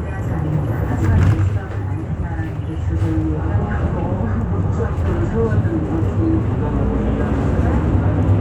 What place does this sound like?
bus